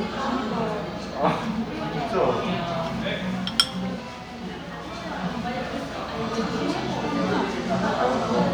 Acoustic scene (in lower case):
cafe